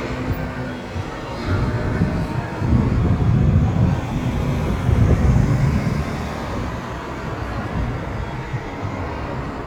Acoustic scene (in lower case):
street